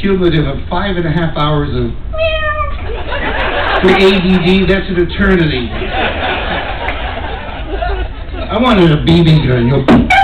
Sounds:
speech

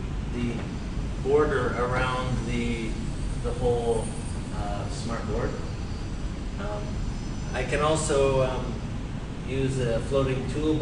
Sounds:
speech

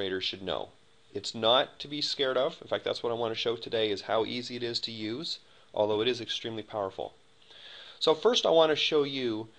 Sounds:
speech

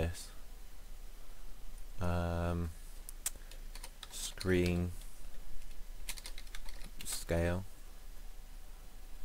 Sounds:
speech

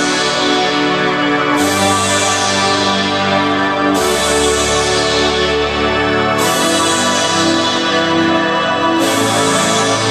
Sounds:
music

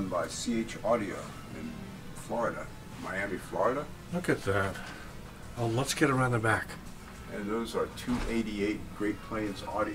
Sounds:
speech

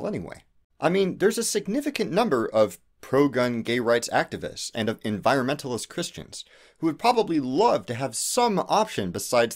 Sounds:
speech

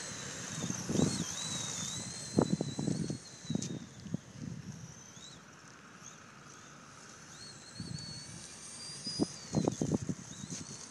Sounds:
car

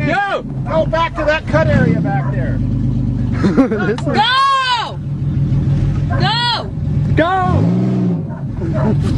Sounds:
speech

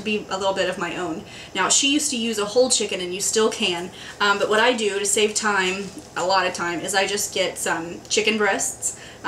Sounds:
speech

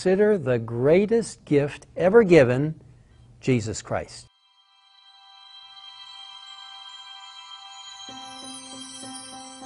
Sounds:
sad music
speech
music

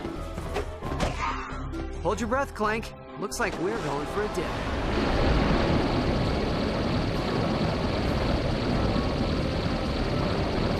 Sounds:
music
speech

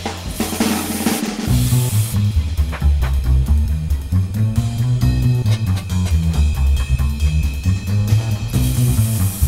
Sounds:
drum roll

